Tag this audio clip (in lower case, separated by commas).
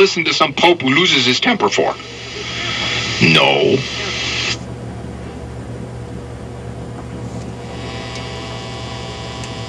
radio, speech